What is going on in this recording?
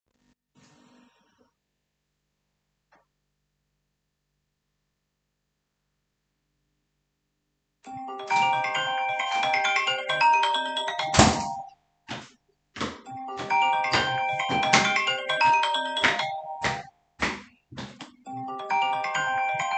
I was in the living room when my phone started ringing. I walked toward the bedroom while the phone continued ringing. I opened the bedroom door and walked toward the phone.